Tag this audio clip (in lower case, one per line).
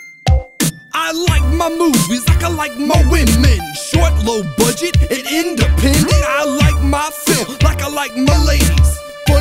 music